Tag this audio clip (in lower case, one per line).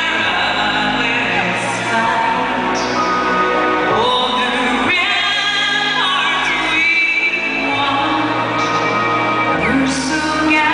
female singing
music